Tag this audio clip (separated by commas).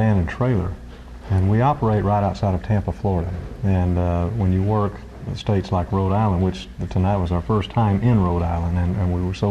Speech